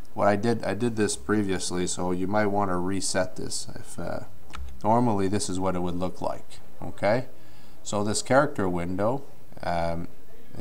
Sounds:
Speech

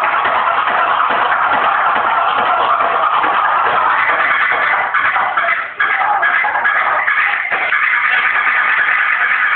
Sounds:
Scratching (performance technique), Music

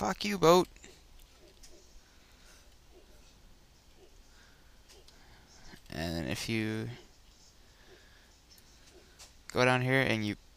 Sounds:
Speech

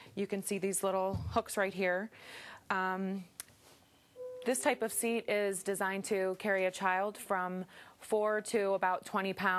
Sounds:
Music, Speech

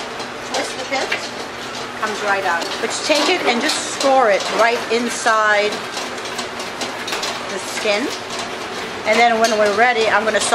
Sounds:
inside a large room or hall, Speech

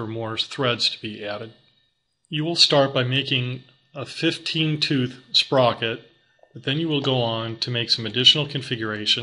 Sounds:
Speech

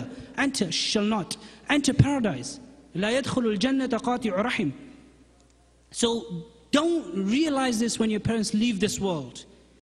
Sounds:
Speech

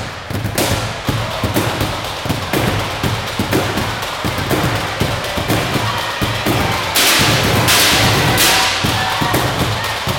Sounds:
Percussion, Music, Speech

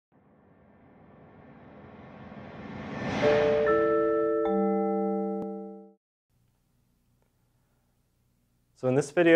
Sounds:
inside a small room, Music, Speech

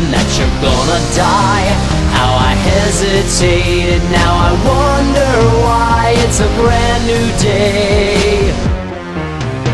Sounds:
Male singing, Music

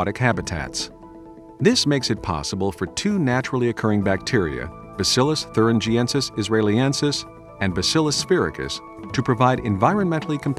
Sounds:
Music, Speech

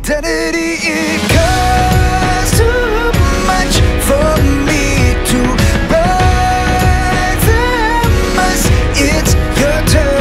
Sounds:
Music

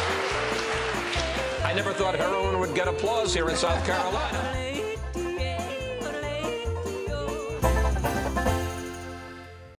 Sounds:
Music, Speech

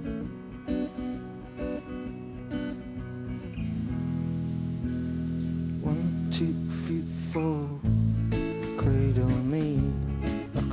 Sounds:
Music

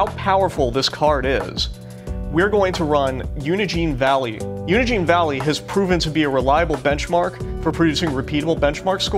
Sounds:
Speech, Music

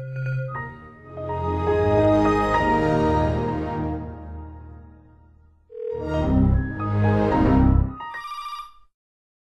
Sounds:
Sound effect

